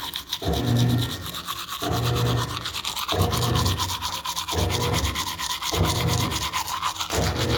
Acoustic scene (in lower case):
restroom